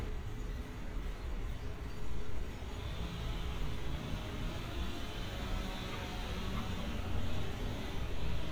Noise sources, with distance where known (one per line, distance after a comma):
unidentified impact machinery
unidentified powered saw, far